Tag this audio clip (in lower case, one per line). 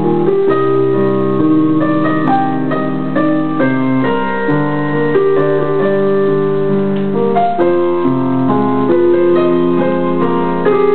music